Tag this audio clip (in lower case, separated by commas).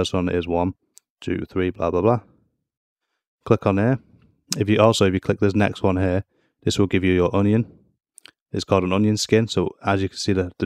speech